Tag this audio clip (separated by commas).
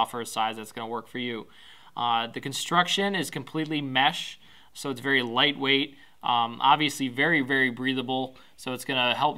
Speech